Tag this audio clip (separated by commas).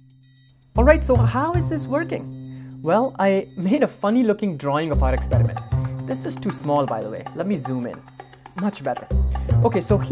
Speech, Music